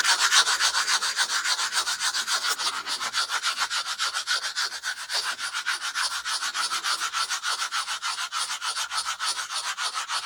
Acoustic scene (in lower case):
restroom